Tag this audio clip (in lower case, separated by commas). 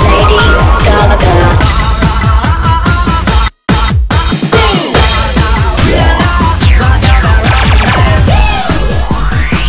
exciting music, dance music, music, theme music